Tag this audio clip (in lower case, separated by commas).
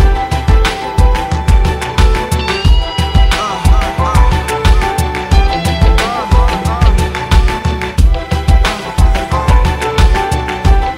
music